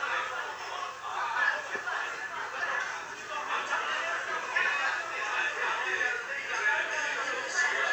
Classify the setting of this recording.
crowded indoor space